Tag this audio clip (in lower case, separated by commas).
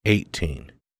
speech, human voice